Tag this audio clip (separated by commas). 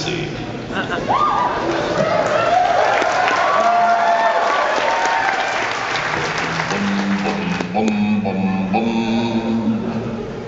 Speech